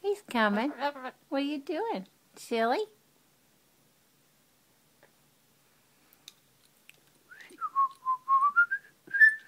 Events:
0.0s-1.1s: female speech
0.0s-9.4s: mechanisms
0.5s-1.2s: bird song
1.3s-2.0s: female speech
2.4s-2.9s: female speech
5.0s-5.1s: generic impact sounds
6.3s-6.4s: tick
6.6s-6.7s: generic impact sounds
6.9s-7.0s: generic impact sounds
7.1s-7.2s: generic impact sounds
7.3s-9.0s: whistling
7.5s-7.6s: bird song
7.9s-8.0s: generic impact sounds
9.1s-9.4s: whistling
9.4s-9.4s: generic impact sounds

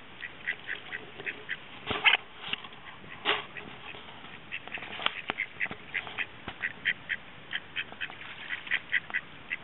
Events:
0.0s-9.6s: wind
0.1s-0.3s: quack
0.4s-0.5s: quack
0.4s-1.5s: water
0.7s-0.7s: quack
0.9s-1.0s: quack
1.2s-1.3s: quack
1.5s-1.6s: quack
1.8s-2.2s: generic impact sounds
2.4s-2.6s: generic impact sounds
3.2s-3.5s: generic impact sounds
3.5s-3.9s: quack
4.3s-5.4s: quack
4.6s-5.3s: generic impact sounds
5.6s-5.7s: quack
5.6s-5.8s: generic impact sounds
5.9s-6.0s: quack
5.9s-6.2s: generic impact sounds
6.1s-6.3s: quack
6.4s-6.6s: generic impact sounds
6.5s-6.7s: quack
6.8s-6.9s: quack
7.1s-7.2s: quack
7.5s-7.6s: quack
7.7s-7.8s: quack
8.0s-8.1s: quack
8.1s-9.5s: water
8.5s-8.8s: quack
8.9s-9.0s: quack
9.1s-9.2s: quack

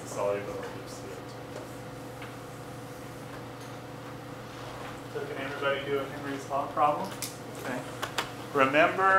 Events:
0.0s-1.1s: man speaking
0.0s-9.1s: mechanisms
0.5s-0.7s: generic impact sounds
1.5s-1.7s: tap
1.5s-3.3s: writing
2.2s-2.3s: tick
3.2s-3.7s: generic impact sounds
4.0s-4.2s: generic impact sounds
4.4s-4.8s: surface contact
4.7s-4.9s: generic impact sounds
5.1s-7.1s: man speaking
5.3s-5.6s: generic impact sounds
6.1s-6.3s: generic impact sounds
7.0s-7.3s: generic impact sounds
7.6s-7.9s: man speaking
8.0s-8.2s: tick
8.5s-9.1s: man speaking

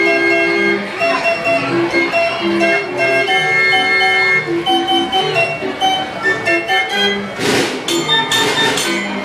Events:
0.0s-9.2s: speech babble
0.0s-9.2s: music

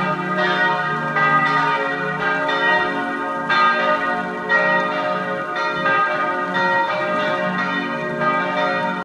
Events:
0.0s-9.0s: background noise
0.0s-9.0s: change ringing (campanology)

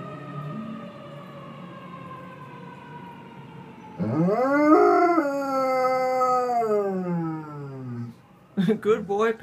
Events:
0.0s-9.4s: background noise
4.0s-8.1s: howl
7.7s-9.4s: siren
8.6s-9.4s: male speech

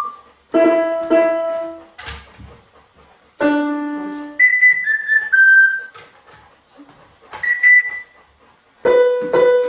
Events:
0.0s-0.3s: whistle
0.0s-9.6s: mechanisms
0.5s-1.9s: music
0.5s-3.2s: pant (dog)
1.9s-2.2s: generic impact sounds
3.3s-4.4s: music
3.9s-4.2s: female speech
3.9s-8.7s: pant (dog)
4.3s-5.9s: whistle
5.8s-6.0s: generic impact sounds
6.2s-6.4s: generic impact sounds
6.7s-7.0s: female speech
6.7s-7.0s: generic impact sounds
7.2s-7.3s: generic impact sounds
7.4s-8.0s: whistle
8.8s-9.6s: music
9.1s-9.3s: tap
9.6s-9.6s: tap

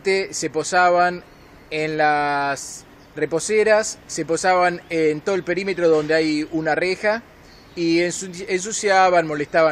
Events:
0.0s-9.7s: wind
0.1s-1.3s: man speaking
1.3s-1.6s: bird call
1.8s-2.9s: man speaking
3.0s-3.1s: bird call
3.2s-4.0s: man speaking
4.1s-4.8s: man speaking
4.8s-5.9s: bird call
4.9s-7.2s: man speaking
6.5s-6.7s: bird call
7.5s-7.8s: bird call
7.8s-9.7s: man speaking
9.4s-9.7s: bird call

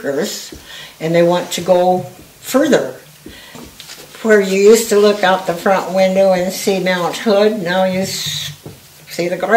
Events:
0.0s-0.6s: woman speaking
0.0s-9.5s: background noise
0.0s-9.5s: conversation
0.5s-0.6s: generic impact sounds
0.5s-0.9s: breathing
0.9s-2.1s: woman speaking
2.0s-2.2s: generic impact sounds
2.5s-3.0s: man speaking
3.2s-3.6s: breathing
3.2s-3.3s: generic impact sounds
3.8s-3.9s: generic impact sounds
4.1s-4.6s: generic impact sounds
4.1s-8.5s: woman speaking
5.4s-6.0s: generic impact sounds
8.6s-8.9s: generic impact sounds
9.0s-9.5s: woman speaking

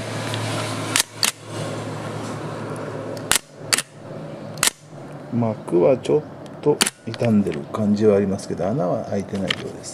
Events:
0.0s-9.9s: mechanisms
0.3s-0.4s: tick
0.9s-1.3s: camera
3.1s-3.2s: tick
3.3s-3.4s: camera
3.7s-3.8s: camera
4.6s-4.7s: camera
4.9s-5.0s: tick
5.0s-5.2s: generic impact sounds
5.3s-6.2s: male speech
6.0s-6.2s: bird vocalization
6.4s-6.7s: generic impact sounds
6.6s-6.8s: male speech
6.8s-6.9s: camera
7.0s-9.9s: male speech
7.1s-7.6s: generic impact sounds
9.2s-9.9s: generic impact sounds

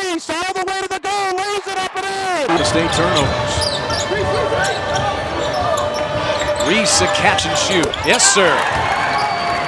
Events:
0.0s-3.3s: man speaking
1.5s-2.5s: cheering
2.5s-3.2s: squeal
2.5s-2.7s: basketball bounce
3.2s-3.3s: basketball bounce
3.5s-4.1s: squeal
4.1s-4.7s: man speaking
4.1s-4.4s: basketball bounce
4.3s-4.4s: squeal
4.6s-4.7s: squeal
4.8s-5.1s: basketball bounce
4.9s-5.0s: squeal
5.4s-5.5s: squeal
5.7s-6.0s: squeal
6.2s-7.2s: squeal
6.5s-8.5s: man speaking
8.0s-8.1s: squeal
8.3s-9.6s: cheering
8.7s-8.9s: basketball bounce
8.8s-9.6s: whistling
9.1s-9.3s: squeal

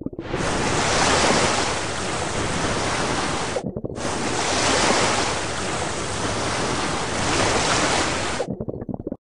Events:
0.0s-0.4s: gurgling
0.1s-3.6s: surf
3.5s-3.9s: gurgling
3.9s-8.5s: surf
8.3s-9.2s: gurgling

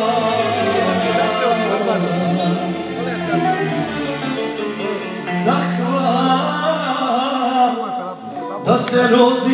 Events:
0.0s-3.5s: male singing
0.0s-9.5s: music
0.7s-2.0s: male speech
2.9s-3.8s: male speech
5.4s-7.7s: male singing
7.8s-8.2s: male speech
8.4s-8.6s: male speech
8.6s-9.5s: male singing
8.8s-8.9s: tick

